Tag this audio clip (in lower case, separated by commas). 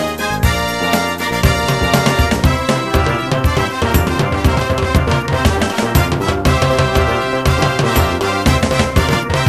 music